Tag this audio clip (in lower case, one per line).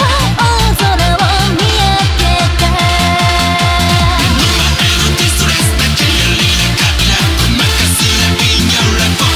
sound effect
music